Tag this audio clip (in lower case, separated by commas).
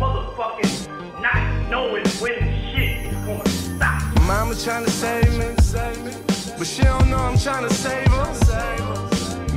music, speech